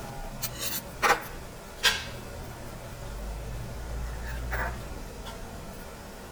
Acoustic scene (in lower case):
restaurant